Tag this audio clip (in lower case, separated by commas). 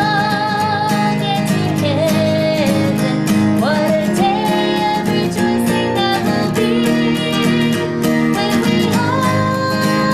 music, tender music